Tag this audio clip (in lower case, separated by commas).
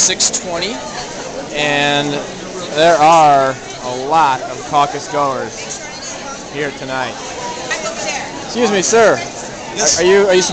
speech